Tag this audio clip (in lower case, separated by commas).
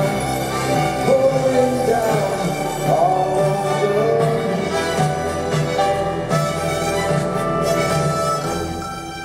music, orchestra